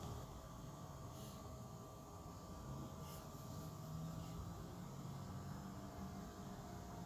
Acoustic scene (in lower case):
park